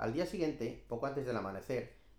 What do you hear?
speech